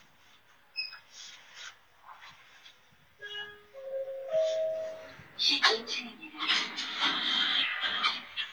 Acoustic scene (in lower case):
elevator